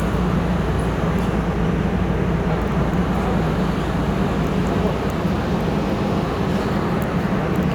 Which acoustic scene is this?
subway station